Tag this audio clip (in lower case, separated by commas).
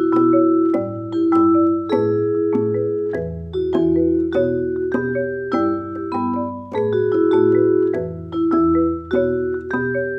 music, percussion